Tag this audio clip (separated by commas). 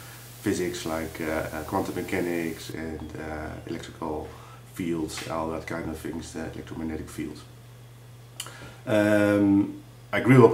Speech